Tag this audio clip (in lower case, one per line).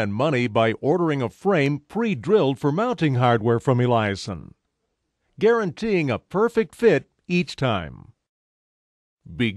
speech